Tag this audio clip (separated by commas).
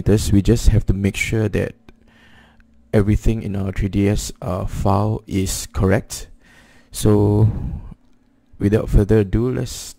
Speech